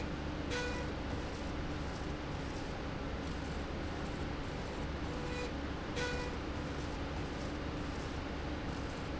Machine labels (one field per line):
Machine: slide rail